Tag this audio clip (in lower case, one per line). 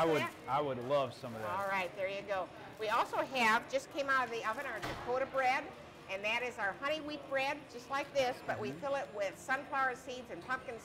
speech